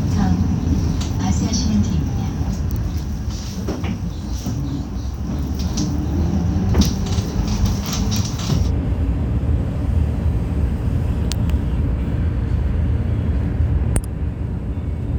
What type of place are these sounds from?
bus